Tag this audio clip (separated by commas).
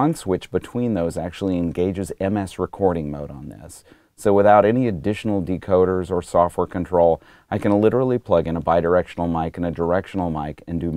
Speech